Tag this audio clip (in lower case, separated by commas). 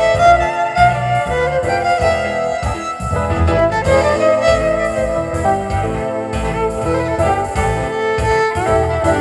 music, fiddle, musical instrument